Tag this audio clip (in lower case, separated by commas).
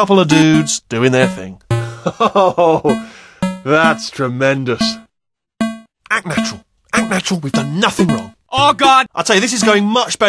speech